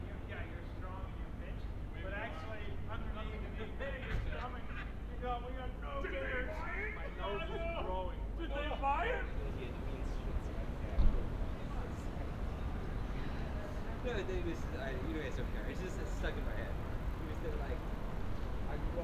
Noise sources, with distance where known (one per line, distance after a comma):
person or small group talking